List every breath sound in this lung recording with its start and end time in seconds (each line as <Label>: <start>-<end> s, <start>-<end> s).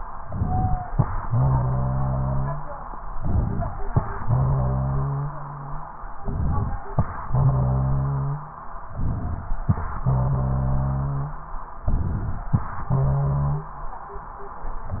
Inhalation: 0.24-0.91 s, 3.15-3.83 s, 6.18-6.85 s, 8.91-9.59 s, 11.88-12.55 s
Exhalation: 1.27-2.70 s, 4.26-5.79 s, 7.23-8.60 s, 10.04-11.48 s, 12.91-13.80 s
Wheeze: 0.43-0.90 s, 1.24-2.66 s, 4.23-5.79 s, 7.27-8.59 s, 10.05-11.61 s, 12.91-13.80 s
Rhonchi: 3.20-3.69 s, 6.26-6.75 s, 8.97-9.46 s, 11.95-12.44 s